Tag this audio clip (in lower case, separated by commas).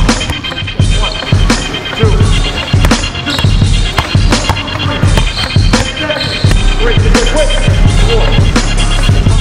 speech, music, basketball bounce